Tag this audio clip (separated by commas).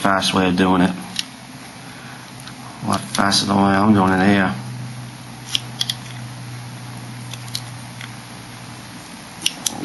Tools